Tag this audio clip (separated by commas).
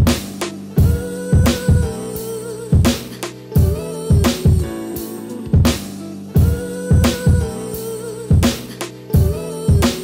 Music